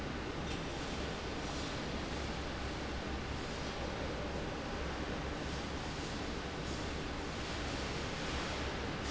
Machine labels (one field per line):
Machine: fan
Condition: normal